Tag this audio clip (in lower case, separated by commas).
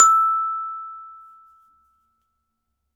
mallet percussion, percussion, glockenspiel, musical instrument, music